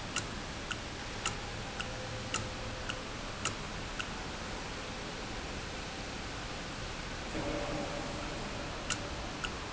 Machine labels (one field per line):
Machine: valve